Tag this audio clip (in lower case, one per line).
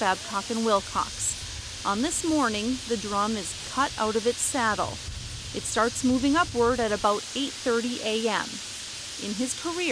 speech